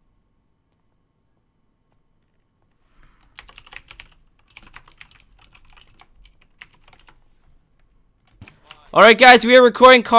The typing sound of a keyboard is heard